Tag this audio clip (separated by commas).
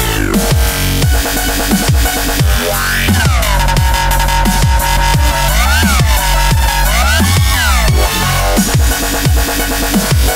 Music, Electronica